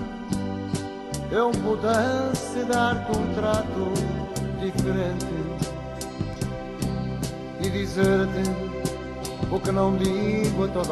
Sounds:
Christmas music, Music

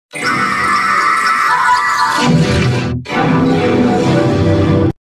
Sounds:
Music

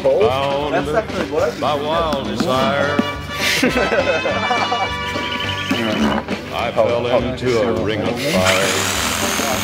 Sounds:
Speech, Music, Tools

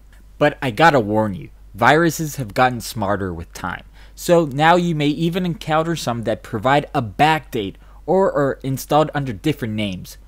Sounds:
Speech

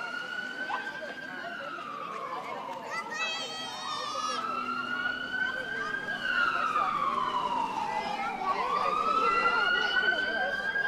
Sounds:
Speech

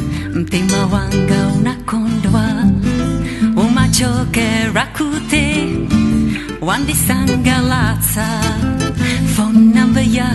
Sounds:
Music, Rhythm and blues

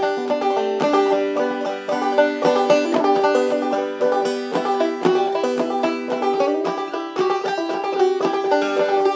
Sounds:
Banjo, Music

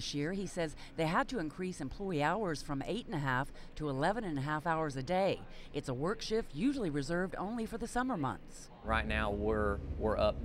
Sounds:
Speech

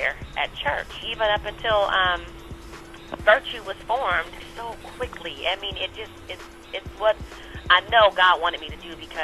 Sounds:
Speech, Music, Radio

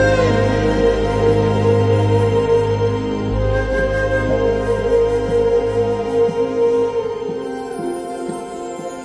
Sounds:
Soundtrack music, Music

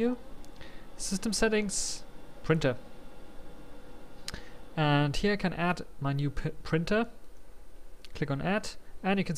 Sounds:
Speech

